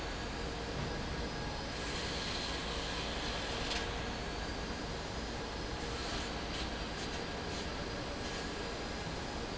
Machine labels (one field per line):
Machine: fan